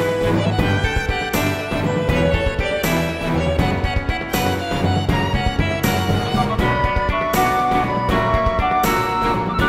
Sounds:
music, independent music

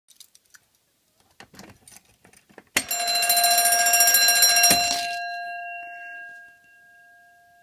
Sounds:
buzzer, alarm

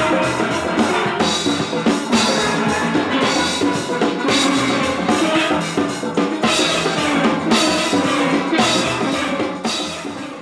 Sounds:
playing steelpan

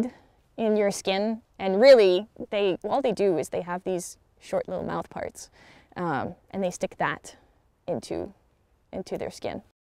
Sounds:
speech

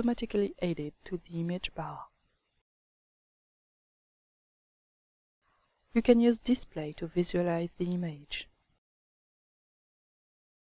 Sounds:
speech

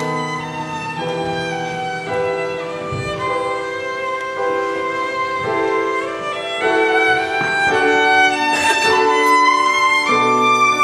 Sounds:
violin, musical instrument, music

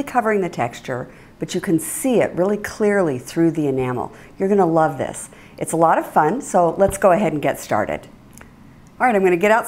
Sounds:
speech

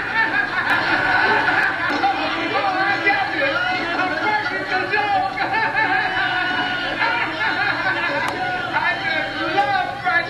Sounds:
speech

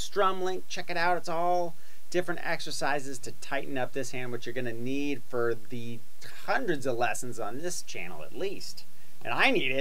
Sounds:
speech

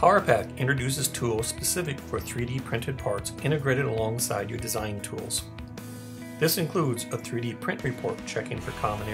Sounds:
speech, music

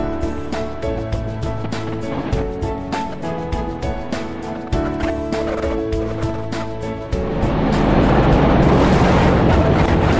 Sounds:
music

